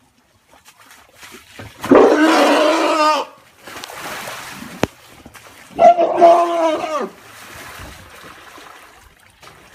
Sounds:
elephant trumpeting

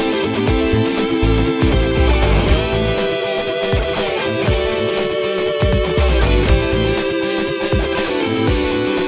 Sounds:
funk
music

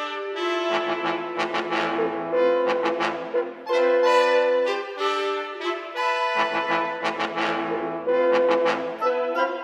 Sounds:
music
brass instrument

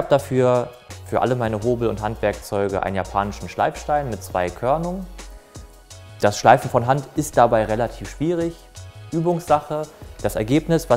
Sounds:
planing timber

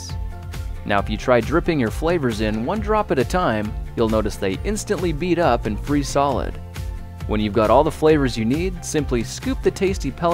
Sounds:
music
speech

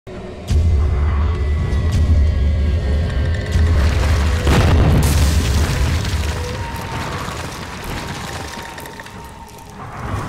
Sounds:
music
boom

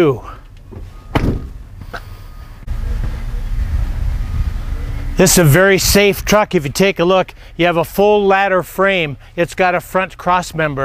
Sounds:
speech
vehicle

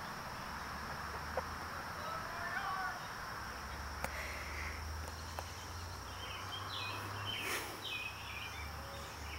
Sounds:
outside, rural or natural
speech

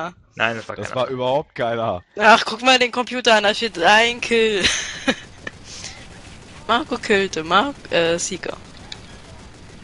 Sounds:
speech

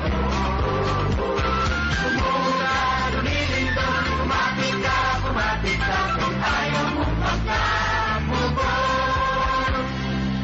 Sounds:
female singing
music
male singing

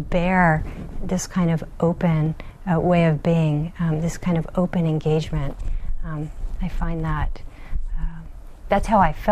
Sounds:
speech

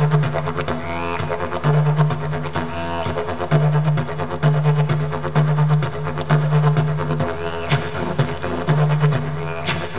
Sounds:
woodwind instrument

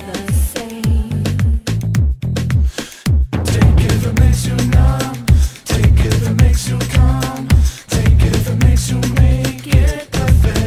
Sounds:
music

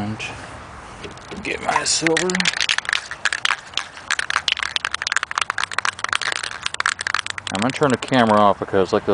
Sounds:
speech

